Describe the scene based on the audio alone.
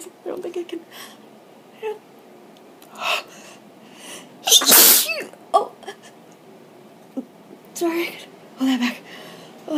A female speaking and sneezing